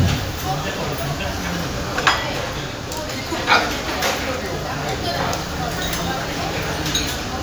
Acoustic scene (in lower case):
crowded indoor space